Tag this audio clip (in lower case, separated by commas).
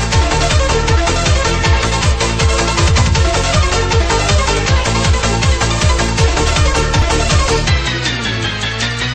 techno, electronic music, music